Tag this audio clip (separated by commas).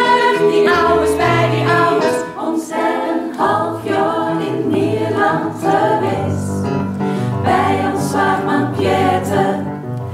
Choir, Vocal music, Music, Singing